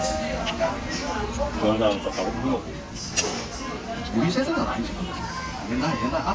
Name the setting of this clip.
restaurant